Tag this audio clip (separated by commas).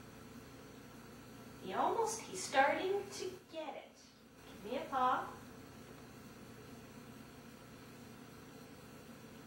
Speech